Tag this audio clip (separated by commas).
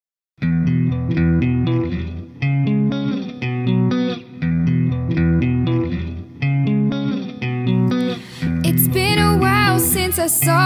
Singing, Music